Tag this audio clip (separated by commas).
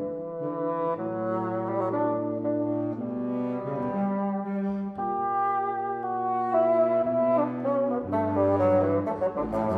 playing bassoon